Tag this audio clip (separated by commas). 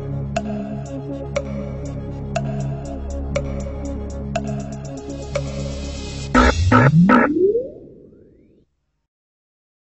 Tick-tock, Music